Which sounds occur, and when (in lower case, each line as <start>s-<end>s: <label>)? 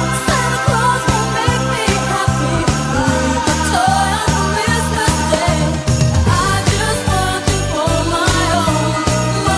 0.0s-9.5s: music
0.1s-5.6s: female singing